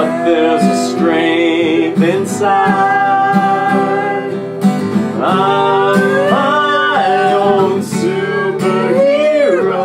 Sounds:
Music

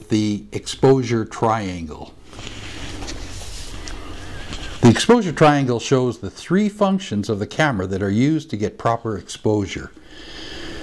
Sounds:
Speech

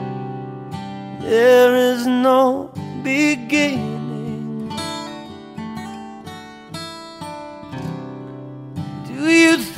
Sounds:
Acoustic guitar

